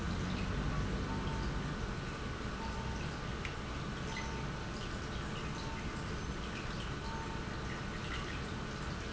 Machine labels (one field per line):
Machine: pump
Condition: normal